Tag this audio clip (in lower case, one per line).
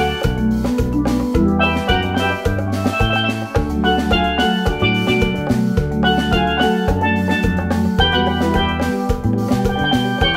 dance music
musical instrument
music